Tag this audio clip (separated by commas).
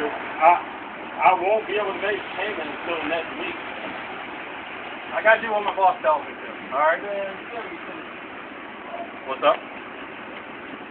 Vehicle, Car, Speech